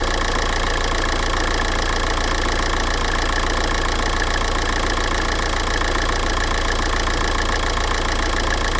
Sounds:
Engine, Car, Vehicle, Idling, Motor vehicle (road)

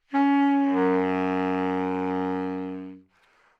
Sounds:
woodwind instrument, Music, Musical instrument

